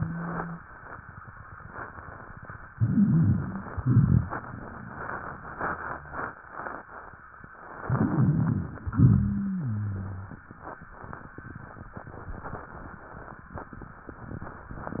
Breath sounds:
Inhalation: 2.73-3.81 s, 7.89-8.88 s
Exhalation: 3.85-4.35 s, 8.96-9.51 s
Wheeze: 8.96-10.40 s
Rhonchi: 2.73-3.81 s, 3.85-4.35 s, 7.89-8.88 s

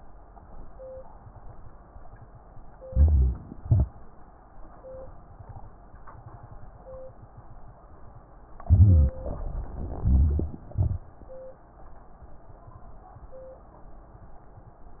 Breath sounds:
Inhalation: 2.84-3.58 s, 8.66-10.00 s
Exhalation: 3.59-3.96 s, 10.04-11.38 s
Crackles: 3.61-3.93 s, 10.04-11.38 s

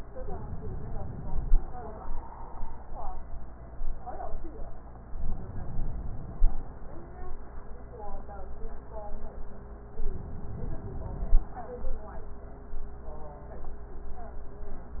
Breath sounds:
Inhalation: 5.17-6.71 s, 10.08-11.61 s

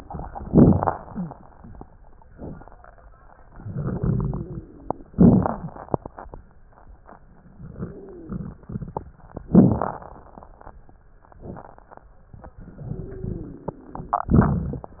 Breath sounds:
Inhalation: 0.42-2.26 s, 5.09-7.32 s, 9.30-11.23 s
Exhalation: 2.28-5.10 s, 11.24-14.29 s
Wheeze: 1.02-1.84 s, 3.79-5.09 s, 5.09-5.74 s, 7.69-8.32 s, 12.88-14.29 s
Crackles: 9.30-11.23 s

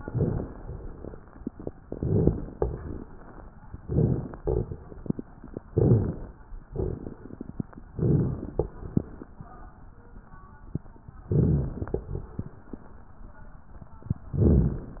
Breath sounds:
Inhalation: 0.00-0.49 s, 1.86-2.47 s, 3.77-4.38 s, 5.71-6.32 s, 7.97-8.52 s, 11.35-11.90 s, 14.36-15.00 s
Exhalation: 2.52-3.13 s, 4.38-4.99 s, 6.74-7.21 s, 8.59-9.23 s, 12.01-12.65 s
Crackles: 0.00-0.46 s, 1.86-2.47 s, 2.52-3.13 s, 3.81-4.36 s, 4.38-4.99 s, 5.73-6.28 s, 6.74-7.21 s, 7.97-8.52 s, 8.59-9.23 s, 11.35-11.90 s, 12.01-12.65 s, 14.36-15.00 s

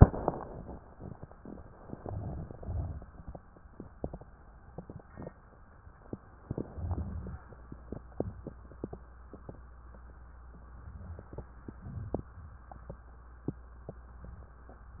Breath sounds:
Inhalation: 1.90-2.62 s, 6.49-7.38 s, 11.13-11.77 s
Exhalation: 2.59-3.31 s, 11.77-12.29 s
Crackles: 1.88-2.59 s, 2.60-3.30 s, 6.47-7.35 s

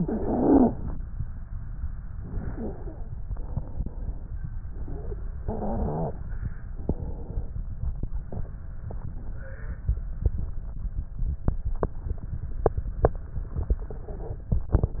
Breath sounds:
Inhalation: 0.00-0.80 s, 5.46-6.26 s
Stridor: 0.00-0.76 s, 5.46-6.26 s

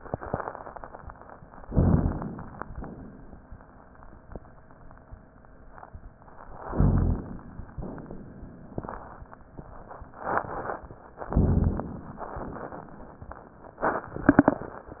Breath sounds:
Inhalation: 1.63-2.54 s, 6.70-7.61 s, 11.29-12.20 s
Exhalation: 2.64-3.55 s, 7.72-8.63 s, 12.35-13.26 s
Crackles: 1.63-2.54 s, 6.70-7.61 s, 11.29-12.20 s

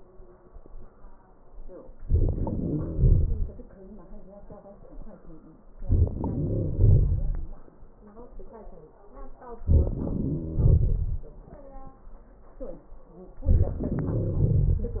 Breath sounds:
No breath sounds were labelled in this clip.

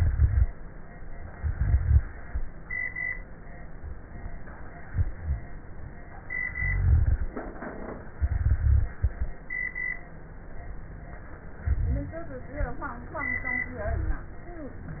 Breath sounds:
Rhonchi: 0.00-0.46 s, 1.31-2.05 s, 6.62-7.29 s, 8.20-8.86 s, 11.63-12.30 s, 13.83-14.33 s

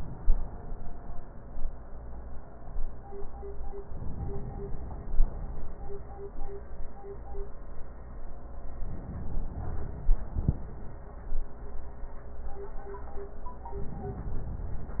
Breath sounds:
Inhalation: 3.88-5.78 s, 8.87-10.78 s

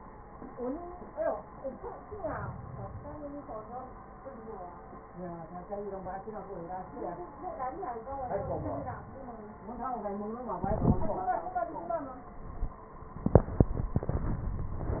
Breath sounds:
Inhalation: 1.86-3.36 s, 7.95-9.45 s

